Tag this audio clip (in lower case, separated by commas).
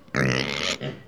livestock, animal